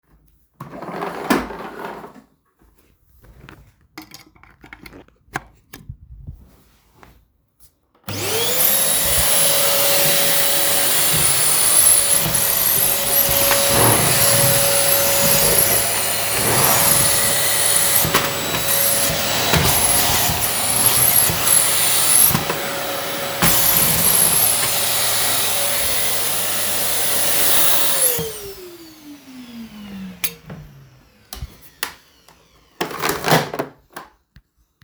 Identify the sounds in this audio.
footsteps, vacuum cleaner